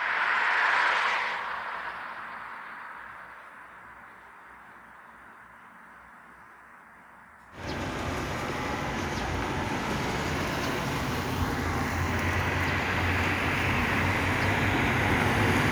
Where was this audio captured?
on a street